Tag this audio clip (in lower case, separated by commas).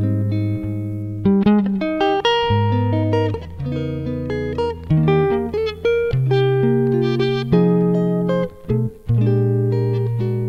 musical instrument, strum, electric guitar, music, guitar, plucked string instrument